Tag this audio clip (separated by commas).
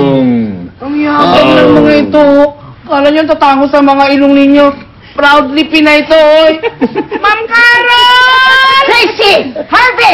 Speech